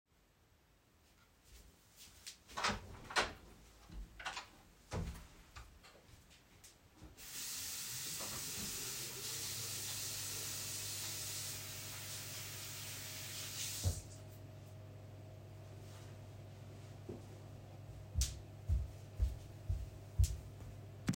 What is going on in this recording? I go to my bedroom door, open it, enter the bathroom. The ventilation turns on automatically, i turn on the faucet, wet my hands, take a pump of soap from the soap dispenser, and finish washing my hands. Then i dry them with my hanging towel and I come back to the bedroom.